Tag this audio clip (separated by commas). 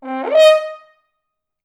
Musical instrument, Music, Brass instrument